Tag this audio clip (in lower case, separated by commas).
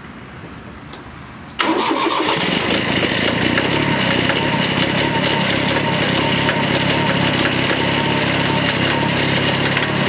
vehicle, outside, urban or man-made